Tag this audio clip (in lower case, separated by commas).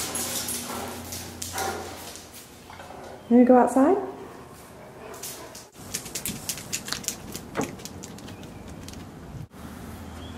pets, speech, animal, dog